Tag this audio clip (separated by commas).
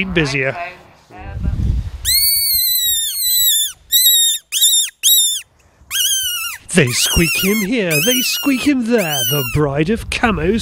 Speech, outside, rural or natural